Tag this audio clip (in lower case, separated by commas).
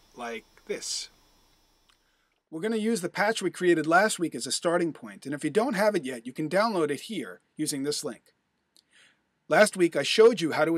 speech